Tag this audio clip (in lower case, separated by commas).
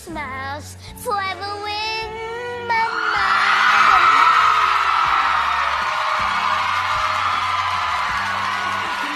child singing